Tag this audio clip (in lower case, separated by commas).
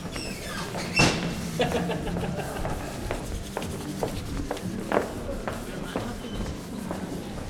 laughter, footsteps, human voice